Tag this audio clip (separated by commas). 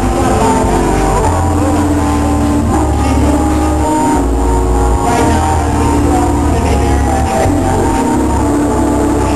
Music